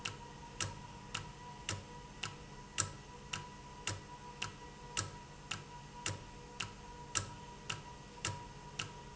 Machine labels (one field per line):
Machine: valve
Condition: normal